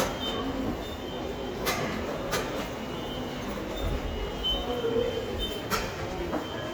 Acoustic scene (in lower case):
subway station